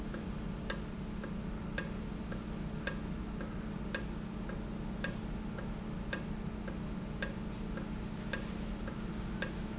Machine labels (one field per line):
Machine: valve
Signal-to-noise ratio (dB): -6 dB